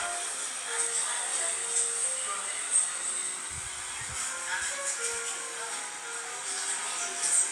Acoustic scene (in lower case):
cafe